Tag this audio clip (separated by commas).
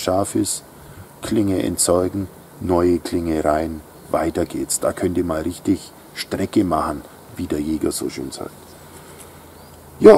sharpen knife